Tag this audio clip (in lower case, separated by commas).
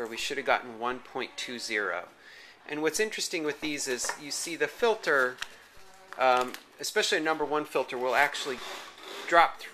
speech